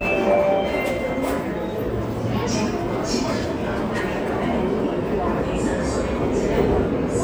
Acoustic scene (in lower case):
subway station